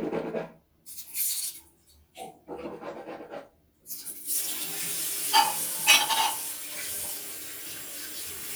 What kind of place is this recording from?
restroom